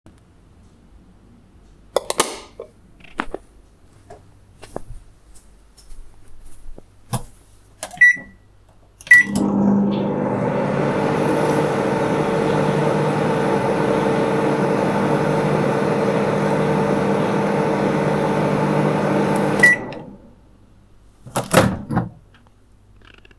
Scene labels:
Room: kitchen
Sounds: light switch, footsteps, microwave

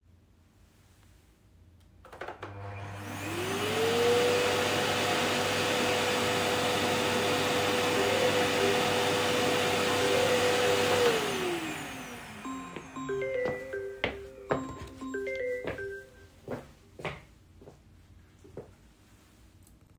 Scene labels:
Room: living room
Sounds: vacuum cleaner, phone ringing, footsteps

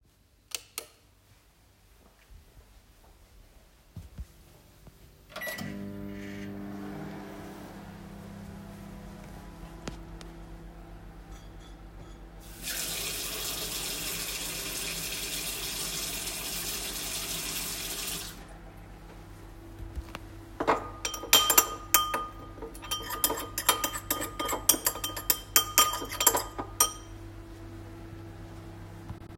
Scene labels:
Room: kitchen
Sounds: light switch, footsteps, microwave, cutlery and dishes, running water

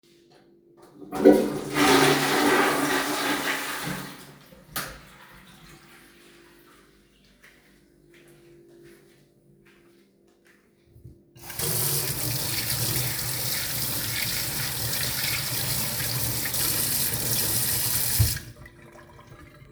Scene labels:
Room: bathroom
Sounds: toilet flushing, light switch, footsteps, running water

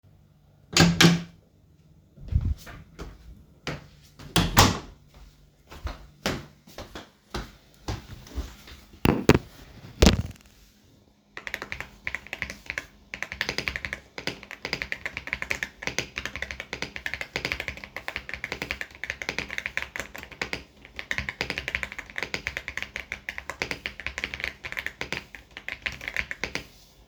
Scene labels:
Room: office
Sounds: door (more than once), footsteps, keyboard typing

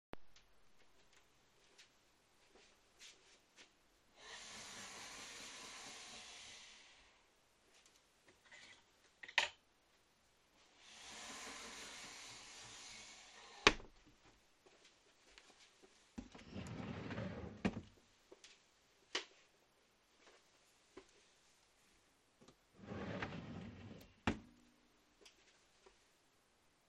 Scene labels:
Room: bedroom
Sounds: footsteps, wardrobe or drawer (more than once)

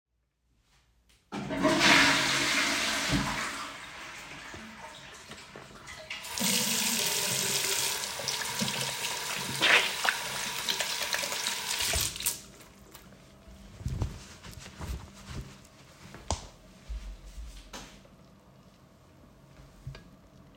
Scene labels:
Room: lavatory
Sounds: toilet flushing, running water, light switch

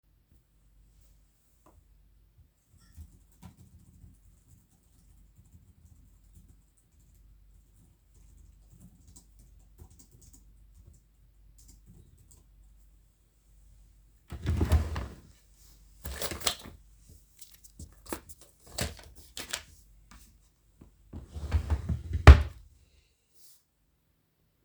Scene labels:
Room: living room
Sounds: keyboard typing, wardrobe or drawer (more than once)

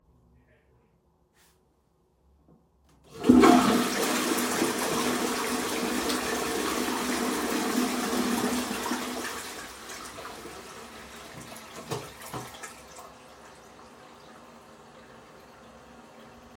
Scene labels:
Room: bathroom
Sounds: toilet flushing

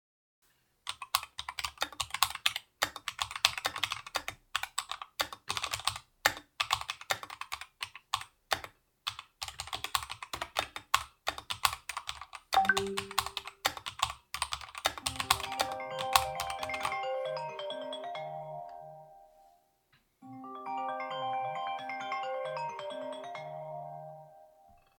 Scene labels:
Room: bedroom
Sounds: keyboard typing, phone ringing

